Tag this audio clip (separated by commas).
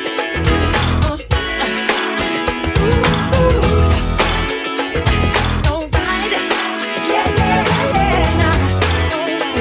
Singing, Pop music, Music